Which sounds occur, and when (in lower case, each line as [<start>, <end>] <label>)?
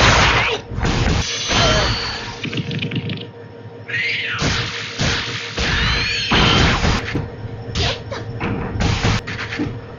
[0.00, 0.56] sound effect
[0.00, 9.95] video game sound
[0.35, 0.55] human voice
[0.78, 2.12] sound effect
[1.55, 1.85] human voice
[2.37, 3.19] sound effect
[3.84, 4.33] sound effect
[4.34, 4.57] thwack
[4.99, 5.16] thwack
[5.52, 5.66] thwack
[5.76, 7.09] sound effect
[7.82, 7.98] human voice
[8.09, 8.19] human voice
[8.38, 8.64] sound effect
[8.78, 9.66] sound effect